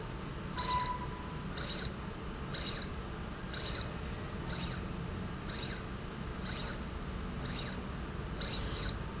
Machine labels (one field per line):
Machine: slide rail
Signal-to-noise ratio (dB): -6 dB